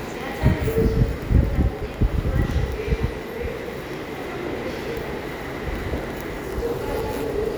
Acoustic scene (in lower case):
subway station